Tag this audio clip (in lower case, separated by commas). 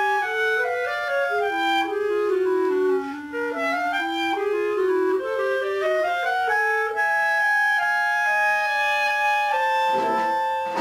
musical instrument, fiddle, music